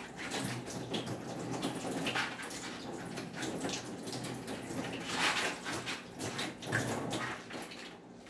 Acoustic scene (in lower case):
kitchen